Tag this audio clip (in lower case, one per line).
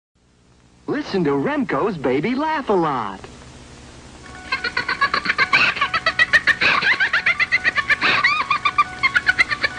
speech
music